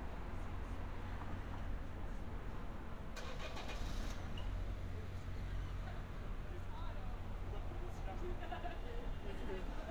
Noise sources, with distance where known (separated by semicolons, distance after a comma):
medium-sounding engine, near; person or small group talking